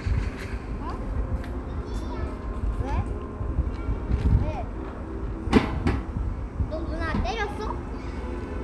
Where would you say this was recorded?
in a park